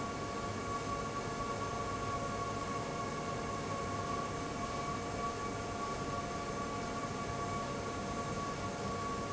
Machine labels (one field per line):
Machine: fan